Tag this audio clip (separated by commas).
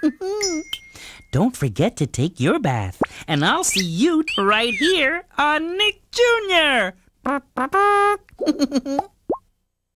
Speech